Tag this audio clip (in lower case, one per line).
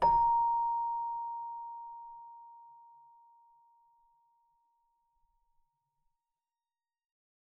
musical instrument
keyboard (musical)
music